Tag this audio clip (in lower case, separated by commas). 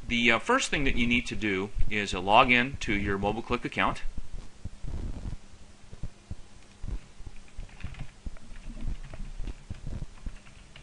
speech